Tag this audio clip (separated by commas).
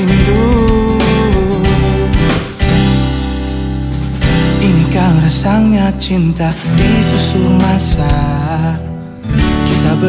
Music